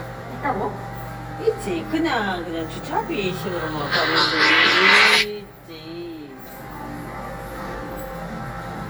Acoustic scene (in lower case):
crowded indoor space